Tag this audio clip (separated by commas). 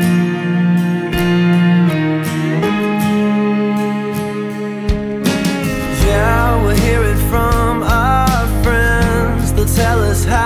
Music